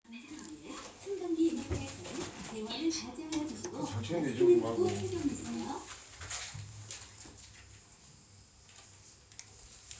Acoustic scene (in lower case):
elevator